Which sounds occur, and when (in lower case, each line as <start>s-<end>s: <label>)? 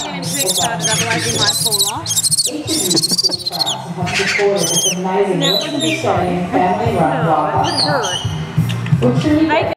0.0s-9.7s: female speech
0.0s-9.7s: wind
0.2s-0.6s: bird call
0.8s-1.9s: bird call
2.0s-2.5s: bird call
2.7s-3.8s: bird call
3.1s-3.8s: bird flight
4.0s-4.4s: bird call
4.6s-5.0s: bird call
5.3s-6.0s: bird call
7.6s-8.5s: bird call
8.7s-9.0s: generic impact sounds